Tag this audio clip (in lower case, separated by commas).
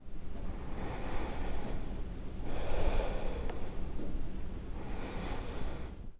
respiratory sounds, breathing